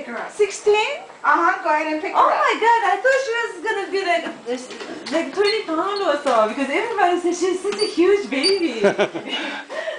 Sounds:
inside a small room, Speech

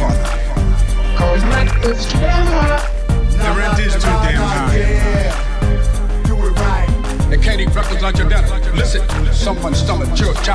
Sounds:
Music

